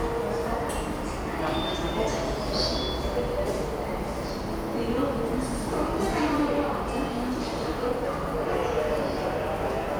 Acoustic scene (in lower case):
subway station